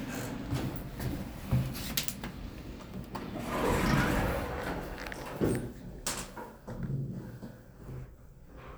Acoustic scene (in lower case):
elevator